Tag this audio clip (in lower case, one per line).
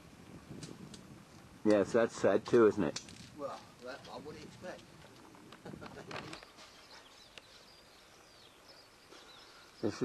speech